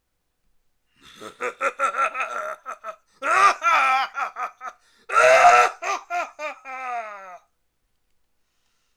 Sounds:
laughter
human voice

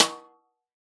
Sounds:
snare drum
musical instrument
music
percussion
drum

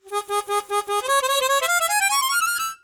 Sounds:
harmonica
music
musical instrument

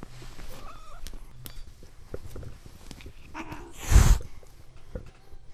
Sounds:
hiss

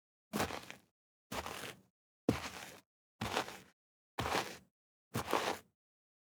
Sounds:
footsteps

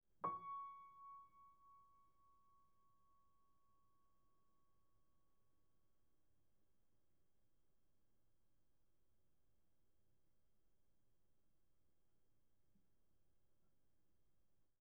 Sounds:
keyboard (musical)
musical instrument
music
piano

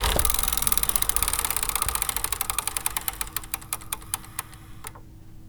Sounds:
mechanisms
vehicle
bicycle

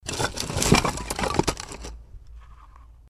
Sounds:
wood
rattle

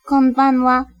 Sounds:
speech
human voice
female speech

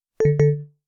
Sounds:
alarm
telephone

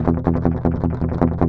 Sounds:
strum
guitar
plucked string instrument
music
musical instrument

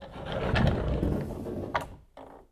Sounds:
domestic sounds
wood
door
sliding door

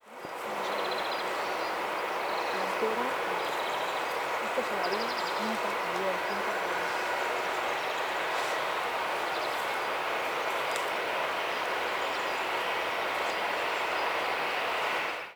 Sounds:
bird
animal
bird song
wild animals

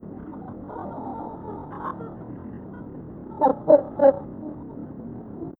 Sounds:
bird
wild animals
animal

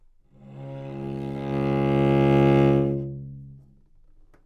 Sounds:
music
bowed string instrument
musical instrument

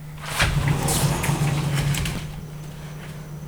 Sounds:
door
sliding door
domestic sounds

